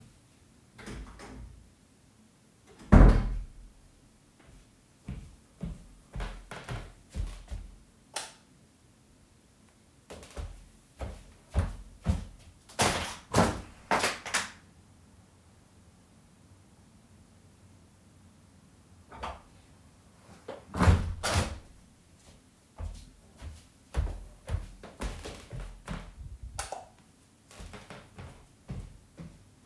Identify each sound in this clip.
door, footsteps, light switch, window